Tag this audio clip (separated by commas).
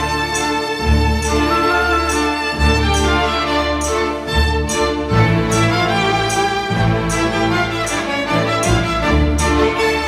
Music